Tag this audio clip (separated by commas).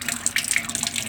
Domestic sounds, Sink (filling or washing)